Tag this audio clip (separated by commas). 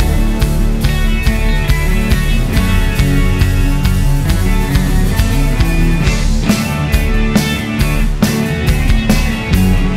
Progressive rock, Music